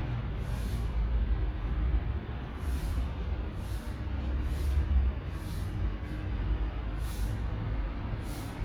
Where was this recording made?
in a residential area